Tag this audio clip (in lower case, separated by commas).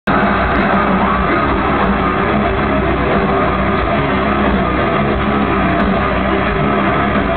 drum kit, musical instrument, music, drum, bass drum